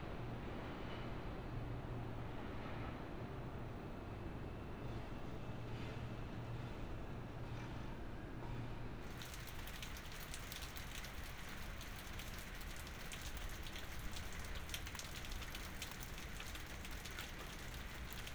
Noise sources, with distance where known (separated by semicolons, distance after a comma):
background noise